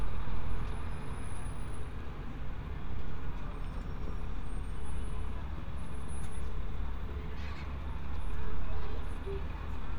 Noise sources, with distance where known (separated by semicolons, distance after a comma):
medium-sounding engine